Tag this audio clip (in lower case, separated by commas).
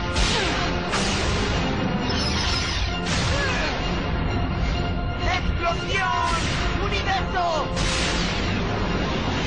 speech, music